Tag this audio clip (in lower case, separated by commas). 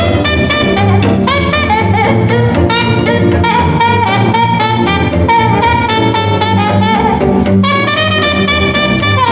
music, jazz